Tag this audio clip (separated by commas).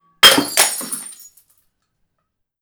Shatter, Glass